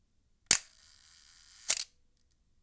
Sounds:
Mechanisms, Camera

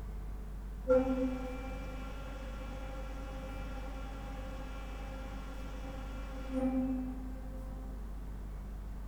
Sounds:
Organ, Music, Keyboard (musical), Musical instrument

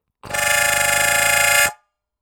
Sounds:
Harmonica, Musical instrument, Music

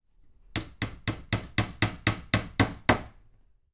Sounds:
Hammer, Tools

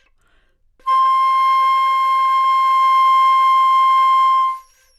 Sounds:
Music, Musical instrument, Wind instrument

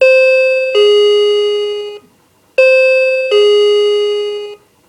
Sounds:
Domestic sounds, Doorbell, Door, Alarm

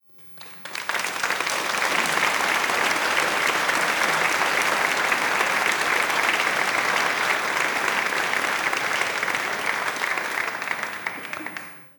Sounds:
Human group actions, Applause

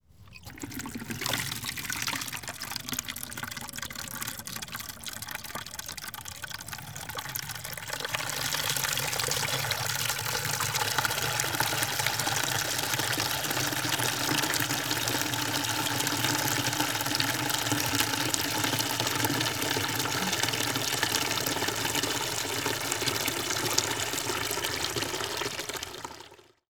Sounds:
Liquid, home sounds, Water tap

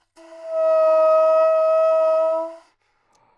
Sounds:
Musical instrument, Music, Wind instrument

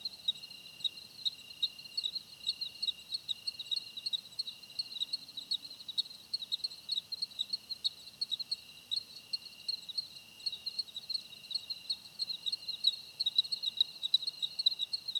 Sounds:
Animal, Insect, Cricket, Wild animals

